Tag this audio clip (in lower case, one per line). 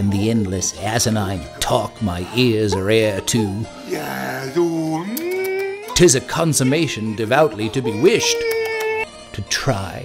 music
speech